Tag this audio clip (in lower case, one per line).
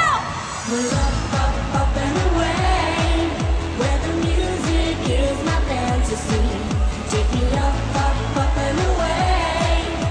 music